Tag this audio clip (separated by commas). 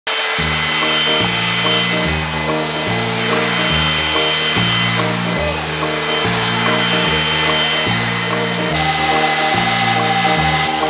vacuum cleaner cleaning floors